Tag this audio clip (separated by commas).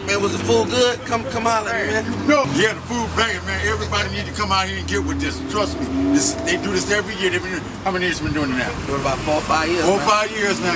Speech